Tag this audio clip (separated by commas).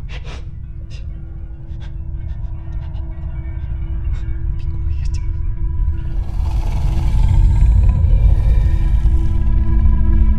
Music, inside a large room or hall, Speech